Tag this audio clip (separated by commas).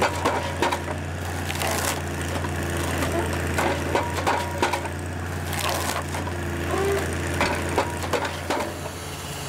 Wood